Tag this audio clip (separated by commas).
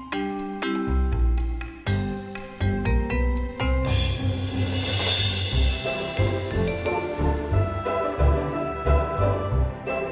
Music